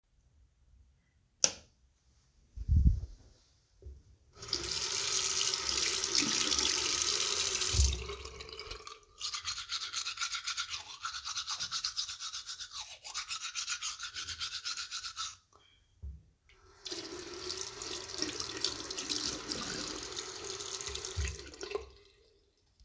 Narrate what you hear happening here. I turned on the light, put water on my toothbrush, brushed my teeth and rinsed the toothbrush when I was done.